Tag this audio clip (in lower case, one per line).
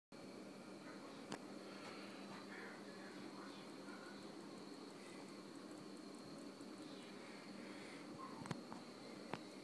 speech